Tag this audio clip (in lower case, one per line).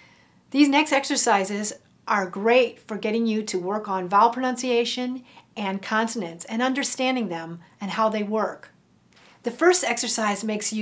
speech